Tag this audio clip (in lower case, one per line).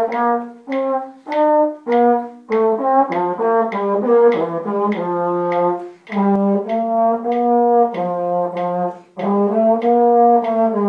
playing trombone